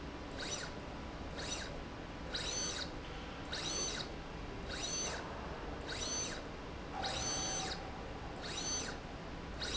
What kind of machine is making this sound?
slide rail